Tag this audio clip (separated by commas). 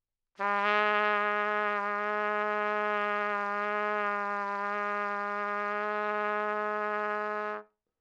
Brass instrument, Music, Musical instrument, Trumpet